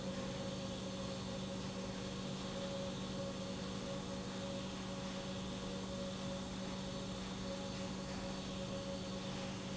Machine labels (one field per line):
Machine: pump